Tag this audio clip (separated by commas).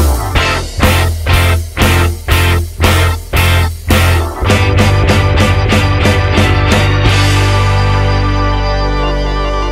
Music, Bang